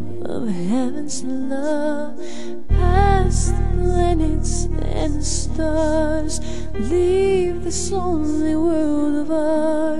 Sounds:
music

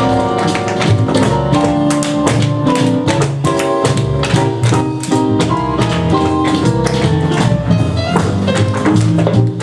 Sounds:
music, percussion

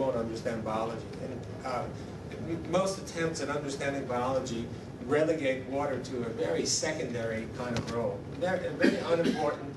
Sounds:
speech

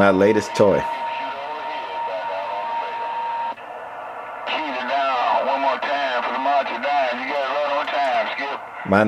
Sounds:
speech, radio

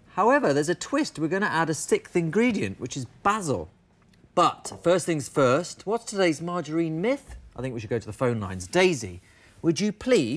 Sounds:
speech

